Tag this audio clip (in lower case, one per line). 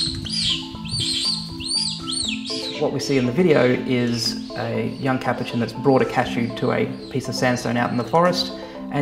speech
music